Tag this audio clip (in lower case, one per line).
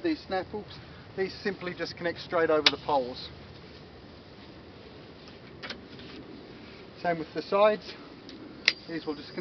speech